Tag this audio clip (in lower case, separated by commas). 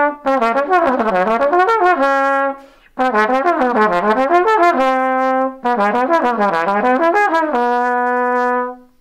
playing cornet